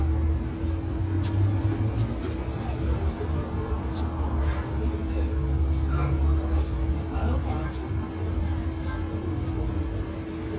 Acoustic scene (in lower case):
residential area